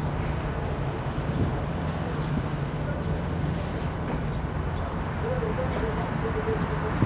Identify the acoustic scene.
street